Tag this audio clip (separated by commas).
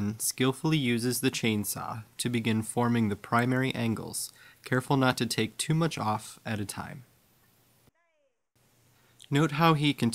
Speech